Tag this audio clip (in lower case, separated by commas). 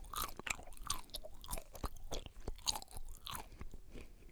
mastication